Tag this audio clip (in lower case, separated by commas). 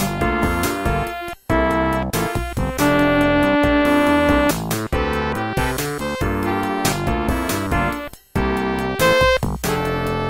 video game music, theme music, music